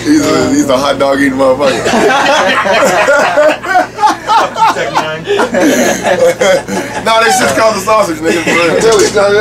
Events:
0.0s-2.1s: man speaking
0.0s-9.4s: conversation
0.0s-9.4s: mechanisms
1.9s-5.2s: giggle
4.7s-5.5s: man speaking
5.5s-7.1s: giggle
5.6s-6.1s: breathing
6.0s-6.7s: man speaking
6.7s-7.0s: breathing
7.0s-9.4s: man speaking
8.2s-8.8s: giggle

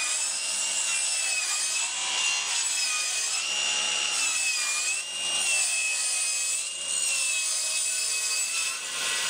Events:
0.0s-9.2s: circular saw

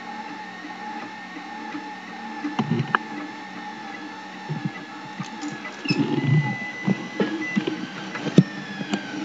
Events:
0.0s-9.2s: mechanisms
0.9s-1.1s: generic impact sounds
1.7s-1.8s: generic impact sounds
2.4s-3.0s: generic impact sounds
3.1s-3.3s: generic impact sounds
3.9s-4.1s: generic impact sounds
4.5s-4.9s: generic impact sounds
5.1s-8.4s: generic impact sounds
5.8s-6.1s: squeal
6.1s-7.2s: bleep
7.4s-7.6s: bleep
8.7s-9.1s: generic impact sounds

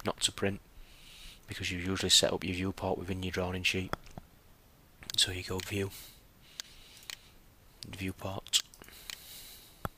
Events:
7.8s-8.6s: male speech
8.9s-9.7s: breathing
9.8s-9.9s: clicking

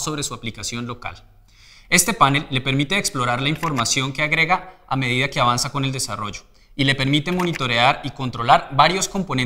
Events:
0.0s-1.1s: man speaking
0.0s-9.4s: background noise
1.5s-1.8s: breathing
1.8s-4.6s: man speaking
3.7s-4.1s: typing
4.6s-4.8s: breathing
4.8s-6.4s: man speaking
6.5s-6.7s: breathing
6.8s-8.5s: man speaking
7.2s-7.6s: typing
8.7s-9.4s: man speaking

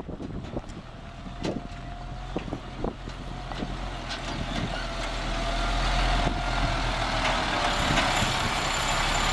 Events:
0.0s-0.7s: wind noise (microphone)
0.0s-9.3s: truck
0.0s-9.3s: wind
0.4s-0.5s: generic impact sounds
0.6s-0.7s: generic impact sounds
1.3s-1.7s: wind noise (microphone)
1.4s-1.5s: generic impact sounds
2.3s-2.5s: generic impact sounds
2.3s-3.0s: wind noise (microphone)
3.0s-3.2s: generic impact sounds
3.4s-4.7s: wind noise (microphone)
3.5s-3.7s: generic impact sounds
4.0s-4.2s: generic impact sounds
4.4s-4.8s: generic impact sounds
4.9s-5.1s: generic impact sounds
6.1s-6.5s: wind noise (microphone)
7.2s-7.4s: generic impact sounds
7.4s-8.6s: wind noise (microphone)
7.9s-8.1s: generic impact sounds

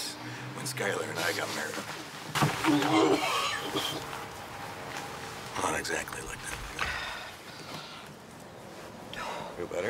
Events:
0.0s-0.1s: man speaking
0.0s-9.8s: mechanisms
0.1s-0.5s: breathing
0.5s-2.0s: man speaking
1.1s-2.1s: surface contact
2.3s-2.9s: generic impact sounds
2.6s-3.2s: human sounds
3.1s-4.0s: cough
4.9s-5.3s: generic impact sounds
5.5s-6.6s: man speaking
6.4s-7.0s: generic impact sounds
6.8s-8.1s: breathing
9.1s-9.6s: breathing
9.6s-9.8s: man speaking

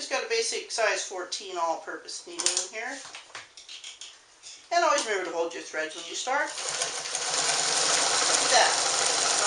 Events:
0.0s-3.0s: woman speaking
0.0s-9.4s: mechanisms
1.5s-1.8s: surface contact
2.4s-2.7s: generic impact sounds
2.8s-3.2s: surface contact
3.1s-4.2s: generic impact sounds
4.2s-4.4s: surface contact
4.4s-4.7s: generic impact sounds
4.7s-6.6s: woman speaking
5.0s-5.1s: generic impact sounds
5.2s-5.4s: tick
5.9s-6.2s: surface contact
6.5s-9.4s: sewing machine
8.5s-8.7s: woman speaking

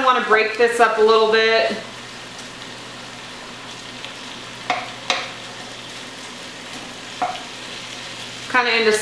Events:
0.0s-1.8s: man speaking
0.0s-9.0s: conversation
0.0s-9.0s: frying (food)
0.0s-9.0s: mechanisms
1.8s-9.0s: stir
4.6s-4.8s: tap
5.0s-5.3s: tap
7.2s-7.4s: tap
8.5s-9.0s: woman speaking

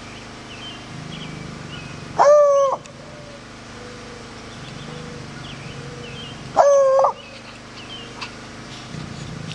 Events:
0.0s-9.5s: mechanisms
6.6s-7.1s: wild animals
7.7s-8.1s: bird call
9.0s-9.3s: generic impact sounds

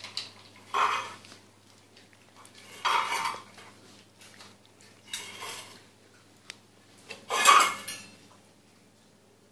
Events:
0.0s-0.2s: tick
0.0s-9.5s: mechanisms
0.3s-0.6s: generic impact sounds
0.7s-1.2s: dishes, pots and pans
1.2s-1.4s: surface contact
1.6s-1.7s: generic impact sounds
1.6s-1.9s: surface contact
1.9s-2.0s: tick
2.1s-2.5s: generic impact sounds
2.6s-3.7s: dishes, pots and pans
3.3s-3.4s: tap
3.8s-4.0s: surface contact
4.2s-4.5s: generic impact sounds
4.6s-4.7s: tick
4.8s-5.8s: dishes, pots and pans
6.1s-6.2s: generic impact sounds
6.4s-6.5s: tick
7.1s-8.2s: dishes, pots and pans
8.3s-8.4s: generic impact sounds
8.7s-9.1s: surface contact

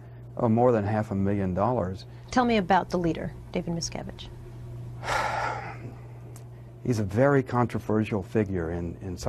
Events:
0.0s-0.2s: breathing
0.0s-9.2s: mechanisms
0.3s-2.0s: man speaking
0.3s-9.2s: conversation
2.3s-3.3s: female speech
3.5s-4.3s: female speech
5.0s-5.8s: sigh
5.8s-5.9s: generic impact sounds
6.3s-6.4s: human sounds
6.8s-9.2s: man speaking
8.4s-8.5s: tick

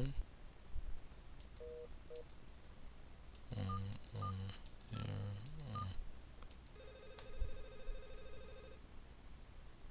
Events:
0.0s-0.2s: human voice
0.0s-9.9s: mechanisms
0.1s-0.2s: generic impact sounds
0.7s-1.0s: generic impact sounds
1.3s-1.6s: clicking
1.5s-1.8s: telephone dialing
2.0s-2.1s: telephone dialing
2.1s-2.3s: clicking
3.3s-3.5s: clicking
3.4s-3.9s: human voice
3.6s-3.7s: telephone dialing
3.9s-4.2s: clicking
4.0s-4.5s: human voice
4.2s-4.3s: telephone dialing
4.6s-4.8s: clicking
4.8s-5.4s: human voice
4.9s-5.0s: telephone dialing
5.4s-5.6s: clicking
5.6s-5.9s: human voice
5.7s-5.8s: telephone dialing
6.3s-6.4s: generic impact sounds
6.4s-6.7s: clicking
6.7s-8.8s: telephone bell ringing
7.1s-7.2s: generic impact sounds
7.4s-7.6s: generic impact sounds

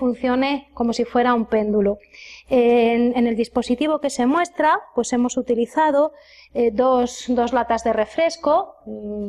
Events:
0.0s-1.9s: woman speaking
0.0s-9.2s: background noise
2.0s-2.4s: breathing
2.5s-4.8s: woman speaking
5.0s-6.1s: woman speaking
6.1s-6.5s: breathing
6.5s-8.6s: woman speaking
8.8s-9.2s: human voice

